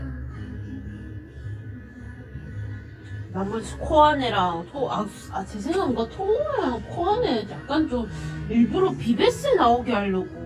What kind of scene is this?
cafe